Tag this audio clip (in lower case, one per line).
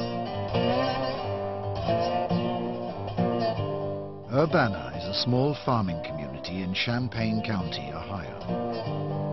zither